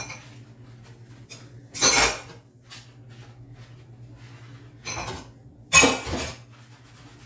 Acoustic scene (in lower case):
kitchen